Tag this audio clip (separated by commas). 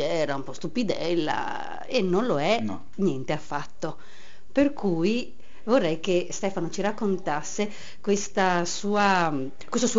Speech